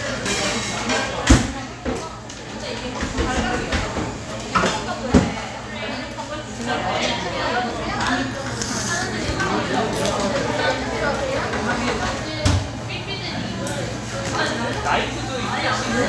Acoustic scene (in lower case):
cafe